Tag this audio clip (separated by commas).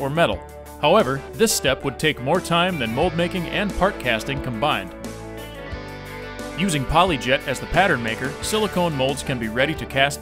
Music, Speech